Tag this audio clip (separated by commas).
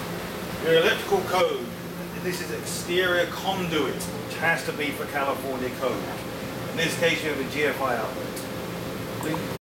Speech